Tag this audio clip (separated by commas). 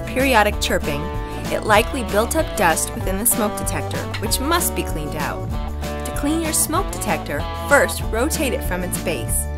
Music, Speech